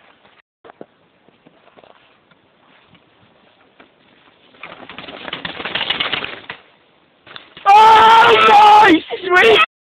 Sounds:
Speech

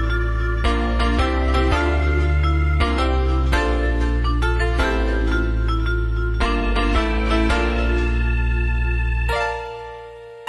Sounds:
Music

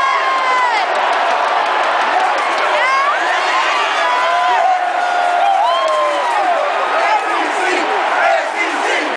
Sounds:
Speech

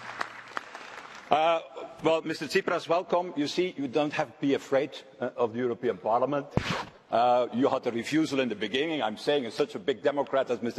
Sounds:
Speech

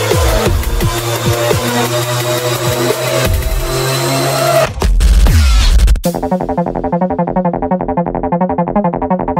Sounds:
Music, Dubstep

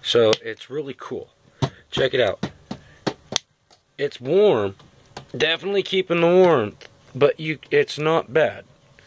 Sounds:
Speech

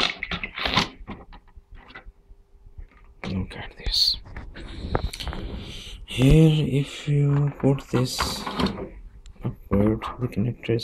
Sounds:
Speech

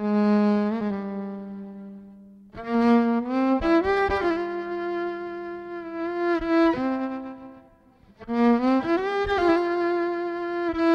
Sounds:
Bowed string instrument, fiddle

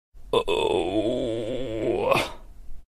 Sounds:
Sound effect, Groan

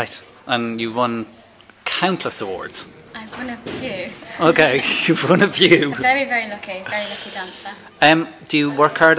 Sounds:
Speech

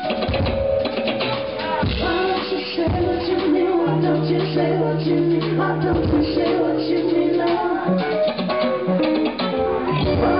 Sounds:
Singing, Music

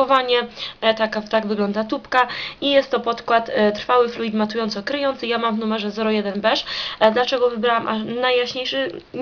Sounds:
Speech

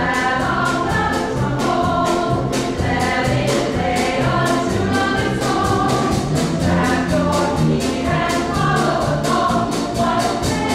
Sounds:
Music

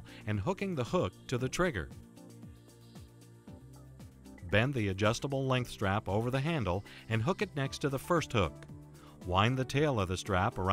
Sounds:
Speech, Music

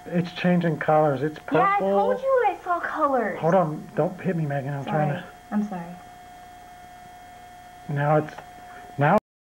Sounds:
Speech

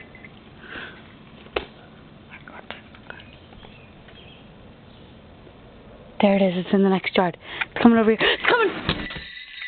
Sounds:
Speech, Animal

